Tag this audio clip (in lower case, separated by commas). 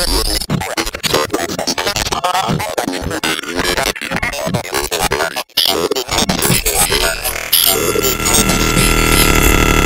inside a large room or hall